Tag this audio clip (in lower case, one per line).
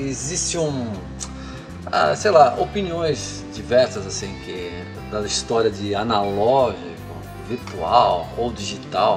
guitar
strum
speech
music